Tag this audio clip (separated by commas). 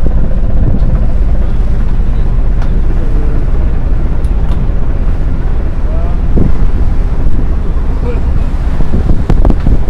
Vehicle, Speech